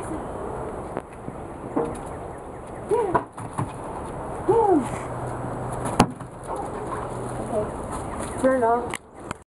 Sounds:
speech

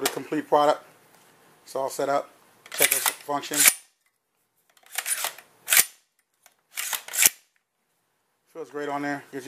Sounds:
speech
inside a small room

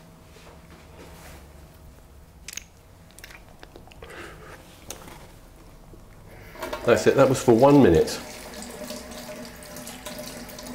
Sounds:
speech

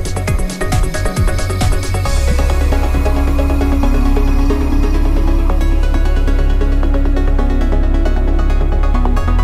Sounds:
music

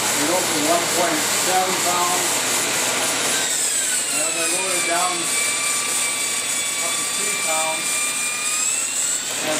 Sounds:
tools
inside a small room
speech
engine

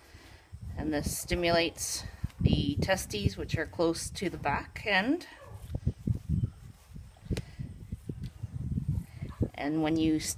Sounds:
speech

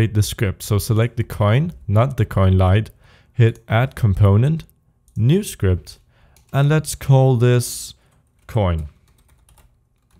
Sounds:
typing

